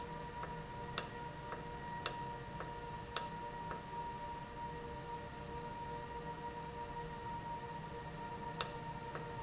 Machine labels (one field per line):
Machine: valve